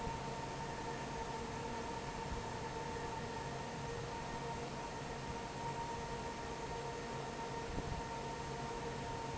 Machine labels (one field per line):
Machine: fan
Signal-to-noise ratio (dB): 0 dB